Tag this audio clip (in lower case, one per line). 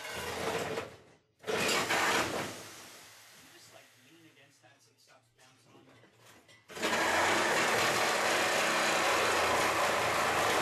speech